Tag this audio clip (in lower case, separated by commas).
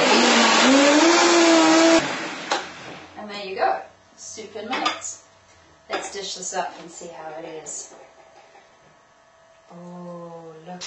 blender